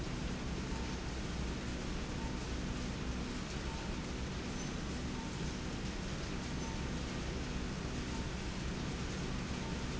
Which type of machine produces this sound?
slide rail